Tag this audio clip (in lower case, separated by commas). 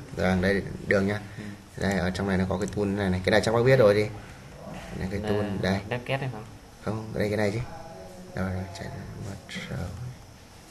speech